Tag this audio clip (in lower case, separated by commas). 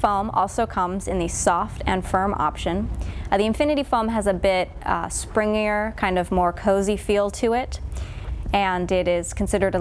speech